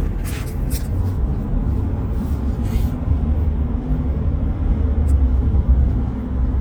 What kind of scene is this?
car